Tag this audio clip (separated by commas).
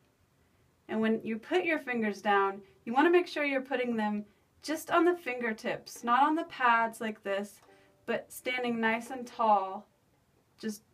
Speech